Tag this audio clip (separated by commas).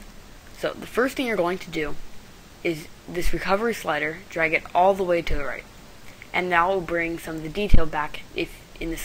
Speech